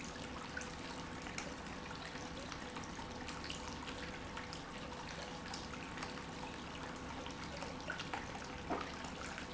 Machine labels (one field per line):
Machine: pump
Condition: normal